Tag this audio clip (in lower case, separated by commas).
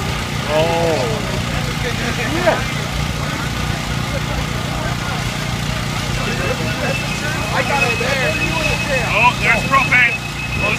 vehicle, speech